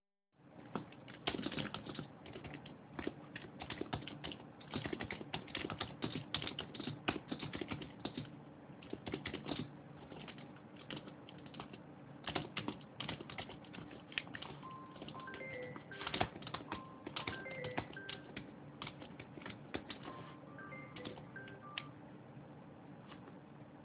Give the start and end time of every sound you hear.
0.5s-22.6s: keyboard typing
14.7s-19.0s: phone ringing
19.8s-22.1s: phone ringing

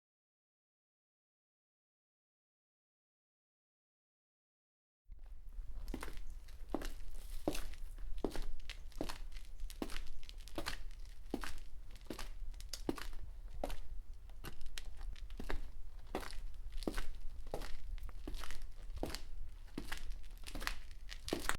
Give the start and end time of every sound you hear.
5.0s-21.6s: footsteps
12.5s-13.4s: light switch

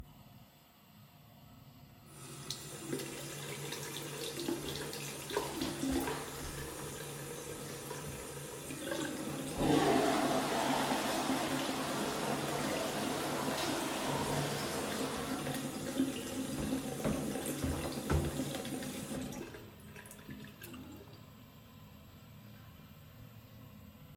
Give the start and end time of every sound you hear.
2.2s-19.7s: running water
9.5s-16.0s: toilet flushing

